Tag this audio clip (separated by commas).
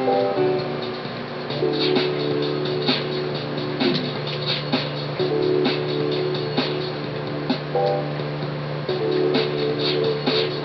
Music